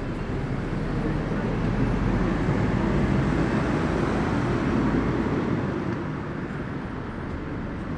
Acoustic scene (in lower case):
street